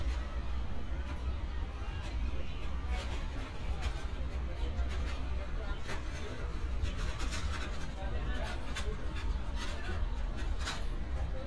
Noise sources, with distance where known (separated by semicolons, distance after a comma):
person or small group talking